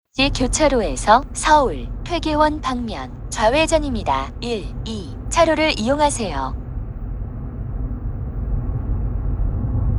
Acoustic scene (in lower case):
car